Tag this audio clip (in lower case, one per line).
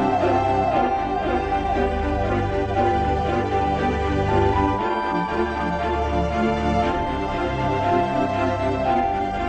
organ